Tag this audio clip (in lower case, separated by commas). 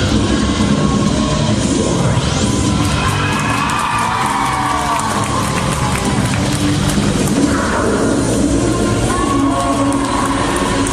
cheering, music